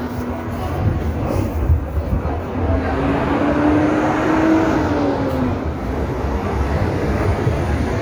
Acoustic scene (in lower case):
street